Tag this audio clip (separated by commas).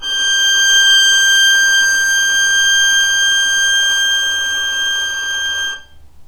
Bowed string instrument, Musical instrument, Music